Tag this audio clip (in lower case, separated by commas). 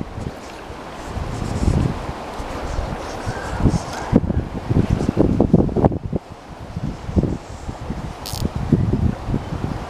stream, wind